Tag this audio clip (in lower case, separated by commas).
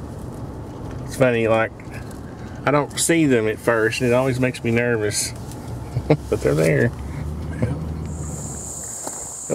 speech